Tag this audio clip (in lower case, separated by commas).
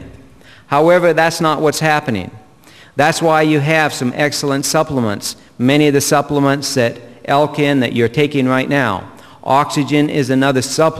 speech